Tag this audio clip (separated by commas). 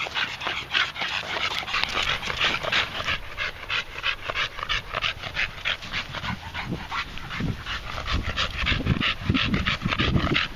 Dog, Animal, Domestic animals, canids